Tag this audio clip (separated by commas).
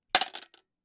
Coin (dropping), Domestic sounds